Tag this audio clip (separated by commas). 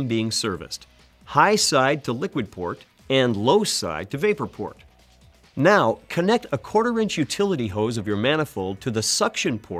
Speech